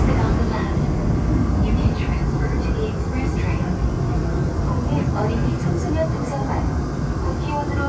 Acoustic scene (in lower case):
subway train